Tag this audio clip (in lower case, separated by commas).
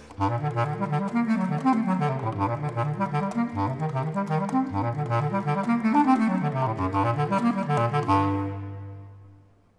brass instrument, saxophone, wind instrument